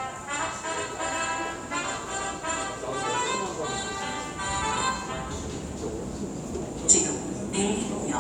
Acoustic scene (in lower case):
subway station